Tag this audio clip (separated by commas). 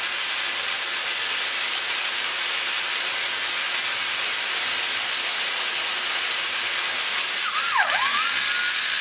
Spray